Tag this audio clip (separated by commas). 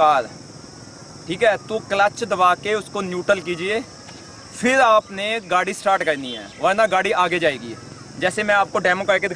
Speech